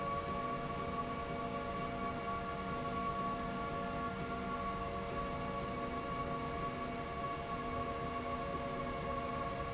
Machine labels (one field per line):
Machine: slide rail